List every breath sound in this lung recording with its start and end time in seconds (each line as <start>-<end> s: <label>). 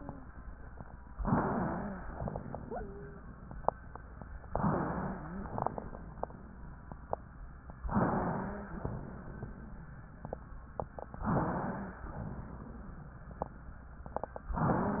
0.00-0.26 s: wheeze
1.19-2.07 s: inhalation
1.31-2.05 s: wheeze
2.07-2.73 s: exhalation
2.09-2.67 s: crackles
2.67-3.25 s: wheeze
4.52-5.46 s: inhalation
4.52-5.46 s: wheeze
5.46-6.41 s: exhalation
5.46-6.41 s: crackles
7.89-8.77 s: wheeze
7.89-8.77 s: inhalation
8.77-9.48 s: exhalation
11.22-11.99 s: wheeze